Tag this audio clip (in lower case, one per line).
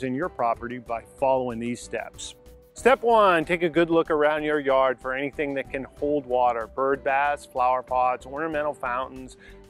speech
music